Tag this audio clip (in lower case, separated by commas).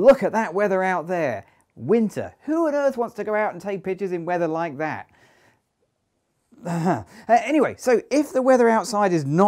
speech